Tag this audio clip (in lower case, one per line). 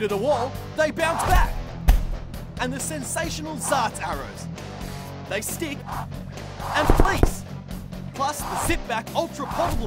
arrow